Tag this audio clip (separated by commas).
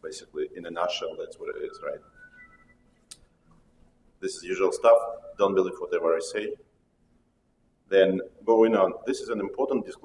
Speech